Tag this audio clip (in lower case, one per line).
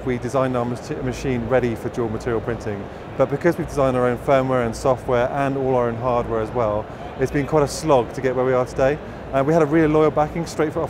speech